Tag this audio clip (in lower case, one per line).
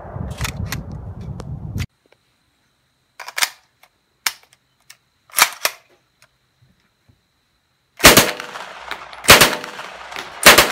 machine gun shooting